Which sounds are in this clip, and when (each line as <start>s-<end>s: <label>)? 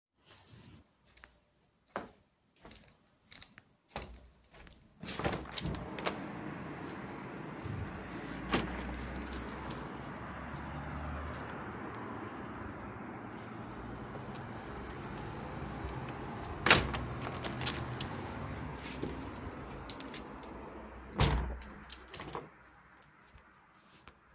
1.1s-5.0s: footsteps
5.0s-6.0s: window
16.6s-17.1s: window
21.2s-22.4s: window